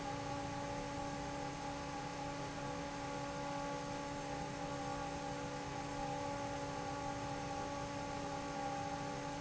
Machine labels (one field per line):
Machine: fan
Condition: normal